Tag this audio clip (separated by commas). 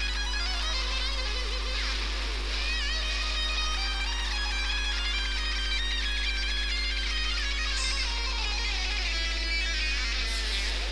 Music